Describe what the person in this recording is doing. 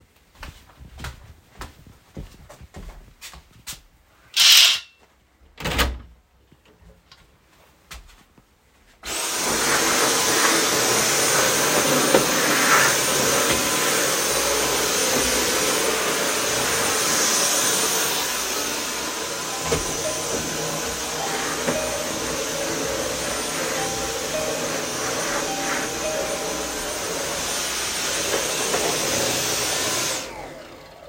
I walked to the window and opened it. Then I started cleaning the room using the vacuum cleaner. While doing so the doorbel rang in the room.